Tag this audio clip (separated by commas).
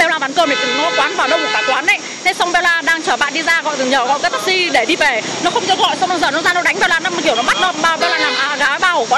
Speech